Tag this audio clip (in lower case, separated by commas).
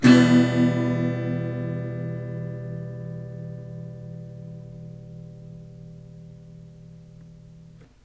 strum, music, plucked string instrument, acoustic guitar, musical instrument, guitar